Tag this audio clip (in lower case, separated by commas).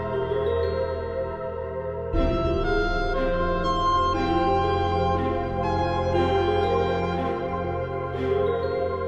organ, hammond organ